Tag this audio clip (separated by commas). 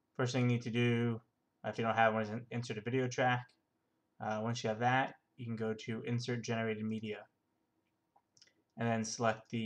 Speech